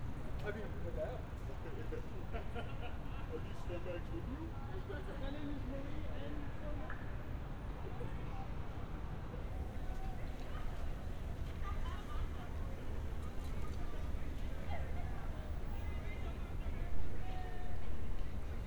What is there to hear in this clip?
person or small group talking